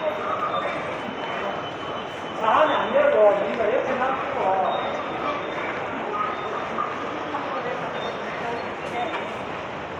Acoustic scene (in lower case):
subway station